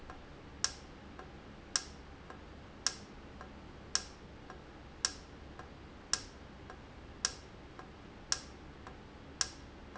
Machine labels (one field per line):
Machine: valve